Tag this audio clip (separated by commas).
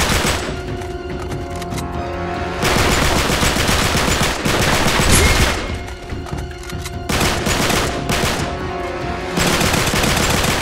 Speech, Fusillade, Music